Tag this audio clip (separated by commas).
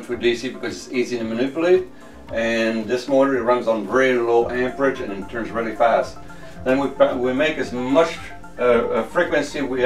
Speech, Music